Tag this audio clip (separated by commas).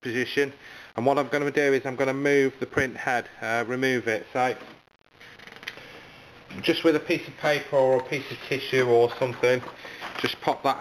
Speech